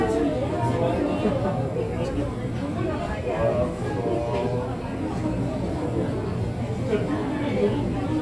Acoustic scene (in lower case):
crowded indoor space